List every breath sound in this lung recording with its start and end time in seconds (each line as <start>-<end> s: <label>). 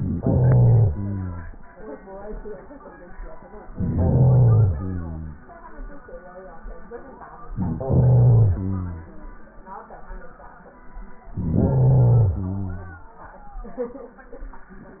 0.00-0.92 s: inhalation
0.93-1.77 s: exhalation
3.70-4.74 s: inhalation
4.75-5.39 s: exhalation
7.50-8.61 s: inhalation
8.60-9.57 s: exhalation
11.28-12.36 s: inhalation
12.36-13.17 s: exhalation